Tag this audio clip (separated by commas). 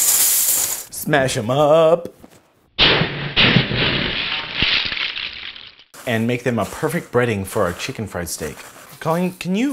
Speech